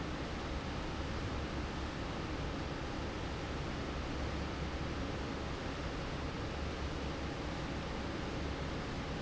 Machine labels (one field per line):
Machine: fan